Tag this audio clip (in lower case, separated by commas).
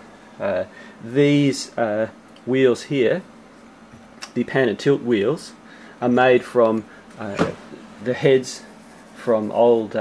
speech